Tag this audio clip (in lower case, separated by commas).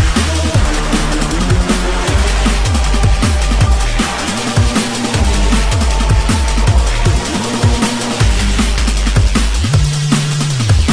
music